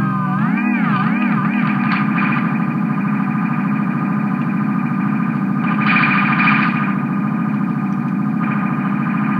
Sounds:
music, musical instrument, synthesizer

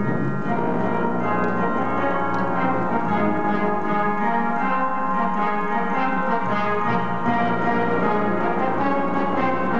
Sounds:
classical music, brass instrument, orchestra, music, inside a large room or hall

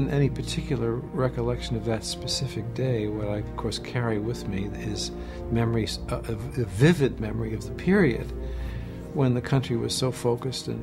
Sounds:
speech, music, sad music

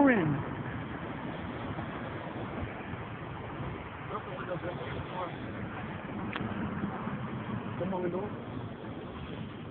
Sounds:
vehicle, outside, urban or man-made, speech

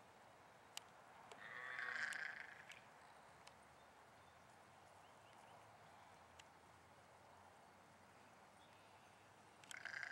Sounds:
domestic animals, sheep, animal

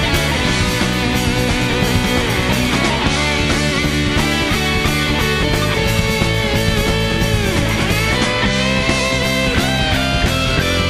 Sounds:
music, progressive rock

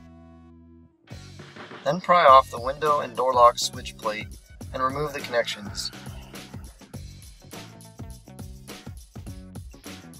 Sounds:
music, speech

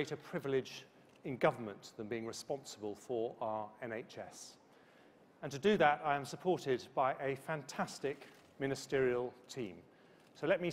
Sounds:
speech, male speech

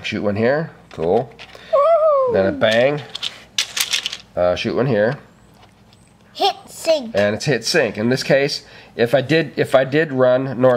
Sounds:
speech

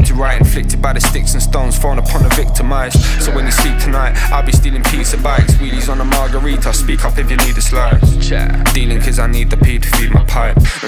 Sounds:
music, independent music

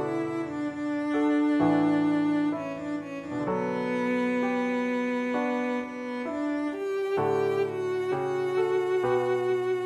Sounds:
music, cello

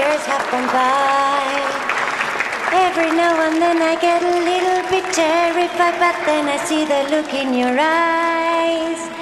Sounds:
applause

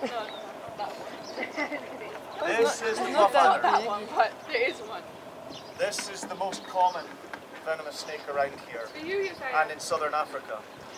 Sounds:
speech, outside, rural or natural

